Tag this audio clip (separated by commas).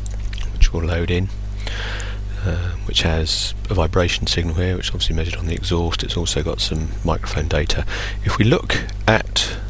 Speech